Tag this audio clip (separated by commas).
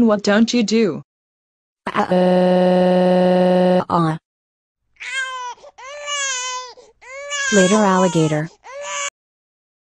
Speech, inside a small room